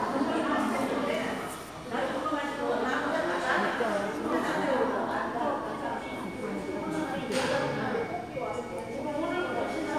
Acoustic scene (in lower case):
crowded indoor space